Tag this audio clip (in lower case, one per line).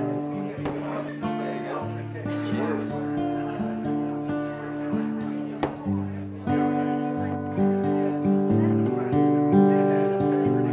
speech
music